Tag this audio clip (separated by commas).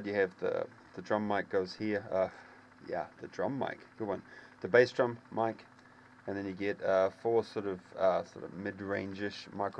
Speech